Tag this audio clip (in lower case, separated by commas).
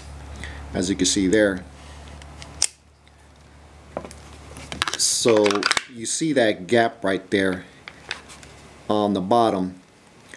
speech